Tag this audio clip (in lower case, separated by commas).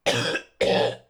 respiratory sounds, cough